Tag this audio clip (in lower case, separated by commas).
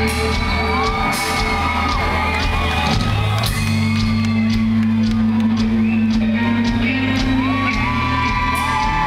inside a public space, music